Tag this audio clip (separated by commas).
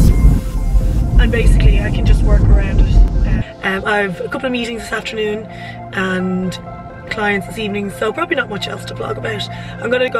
Vehicle, Car, Speech, Music